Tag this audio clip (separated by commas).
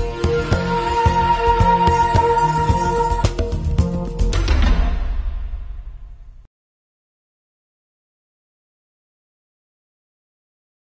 Music